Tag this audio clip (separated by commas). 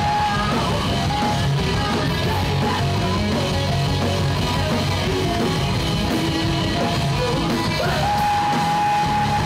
Music